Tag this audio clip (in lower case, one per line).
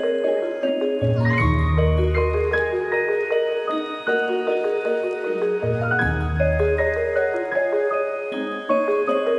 music